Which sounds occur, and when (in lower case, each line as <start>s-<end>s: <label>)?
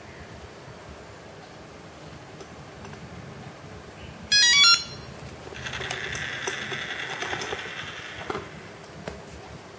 0.0s-9.7s: mechanisms
2.3s-2.4s: tick
2.8s-2.9s: tick
4.3s-5.2s: ringtone
5.5s-8.5s: generic impact sounds
9.0s-9.1s: tick